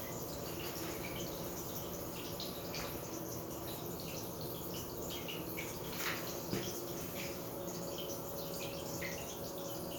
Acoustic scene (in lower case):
restroom